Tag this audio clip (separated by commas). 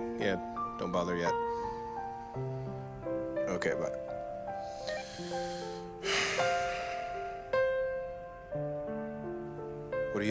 Speech, Music